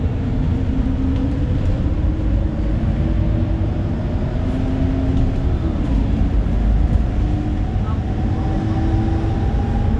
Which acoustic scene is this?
bus